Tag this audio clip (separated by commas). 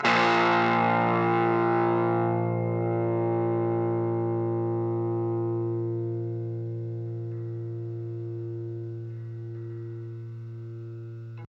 Musical instrument, Guitar, Music, Plucked string instrument